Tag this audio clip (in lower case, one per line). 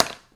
tap